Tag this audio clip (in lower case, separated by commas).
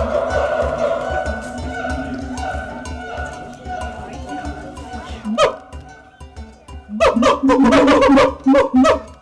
gibbon howling